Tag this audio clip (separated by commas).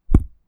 footsteps